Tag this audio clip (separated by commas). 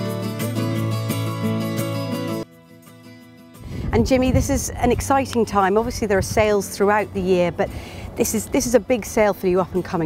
Speech, Music